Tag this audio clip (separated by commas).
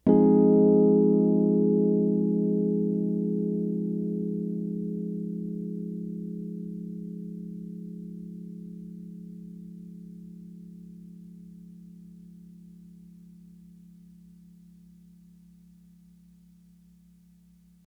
Musical instrument, Piano, Music, Keyboard (musical)